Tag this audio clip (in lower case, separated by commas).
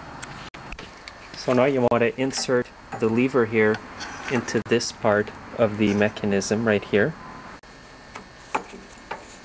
speech